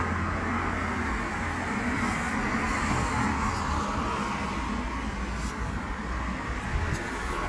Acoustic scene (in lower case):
street